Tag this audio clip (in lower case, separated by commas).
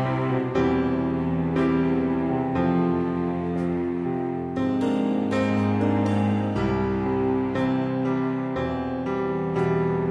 vehicle, outside, urban or man-made, speech